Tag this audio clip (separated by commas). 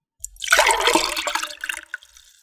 Liquid